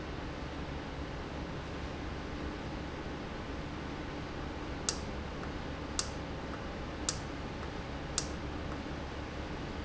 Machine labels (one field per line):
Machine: valve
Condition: normal